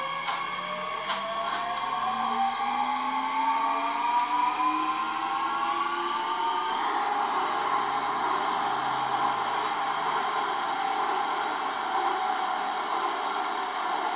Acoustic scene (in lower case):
subway train